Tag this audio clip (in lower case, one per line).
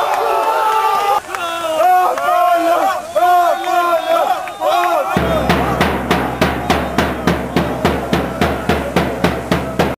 speech
music